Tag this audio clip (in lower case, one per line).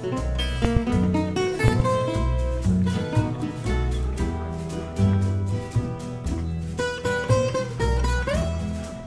pizzicato